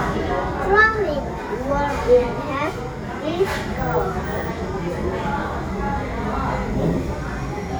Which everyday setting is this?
crowded indoor space